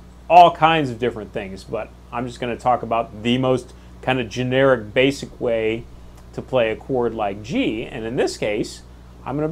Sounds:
Speech

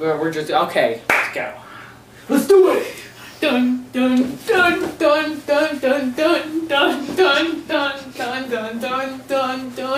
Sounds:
Speech

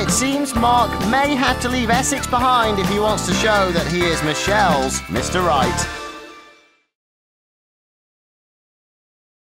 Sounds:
Speech, Music

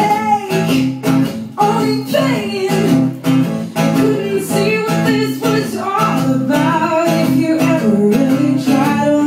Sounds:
Blues, Music

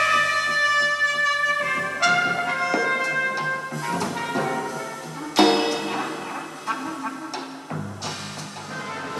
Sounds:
Music

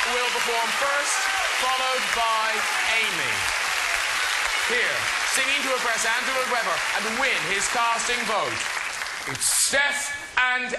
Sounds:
Speech

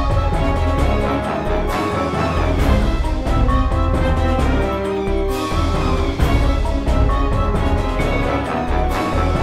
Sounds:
Music

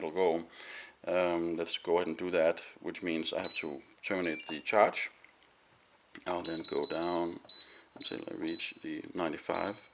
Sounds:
Speech

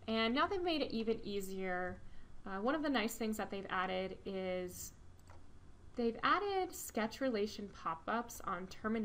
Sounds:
Speech

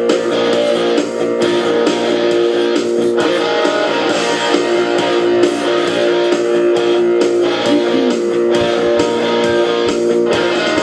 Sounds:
Rock and roll, Music

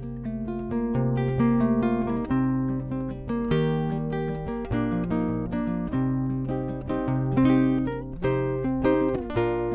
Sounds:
Guitar, Plucked string instrument, Music, Musical instrument

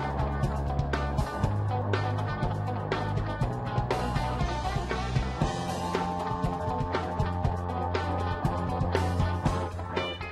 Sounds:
Music

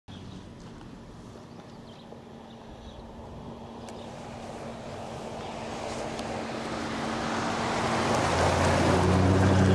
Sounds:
Animal

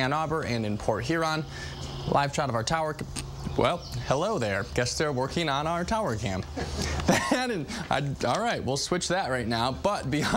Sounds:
Speech

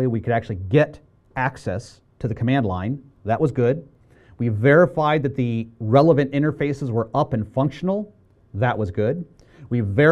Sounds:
Speech

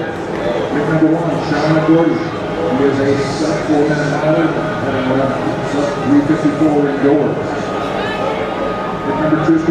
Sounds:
Speech, outside, urban or man-made, Male speech, Run

